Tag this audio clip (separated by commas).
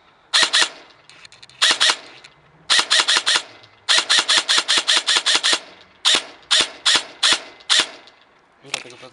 Speech